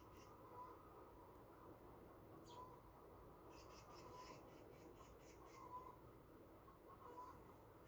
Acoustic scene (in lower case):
park